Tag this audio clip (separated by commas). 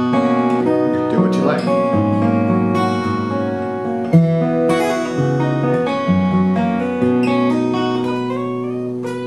Speech, Rock music, Acoustic guitar, Music, Guitar, Plucked string instrument, Musical instrument